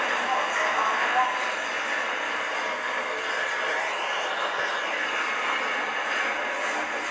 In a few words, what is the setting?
subway train